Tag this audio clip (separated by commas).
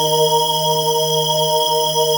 Music, Musical instrument, Keyboard (musical), Organ